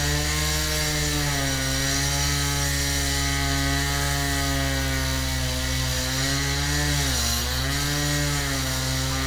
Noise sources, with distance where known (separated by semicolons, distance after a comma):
jackhammer; unidentified powered saw